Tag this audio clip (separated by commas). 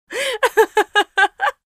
Laughter, Chuckle, Human voice